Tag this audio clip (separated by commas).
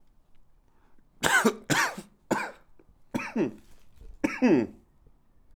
Cough, Respiratory sounds